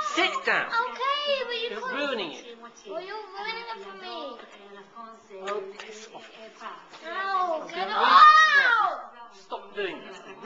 A person yells nearby as a child talks, and then a child yells loudly